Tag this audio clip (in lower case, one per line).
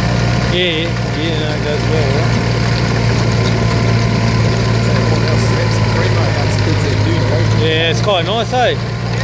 tractor digging